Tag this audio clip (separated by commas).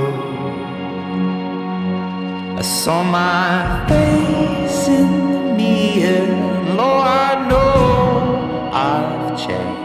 Music